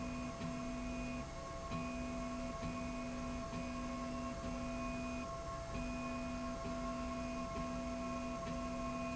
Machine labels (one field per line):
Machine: slide rail